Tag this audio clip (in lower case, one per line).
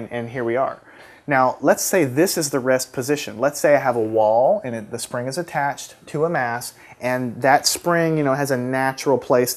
speech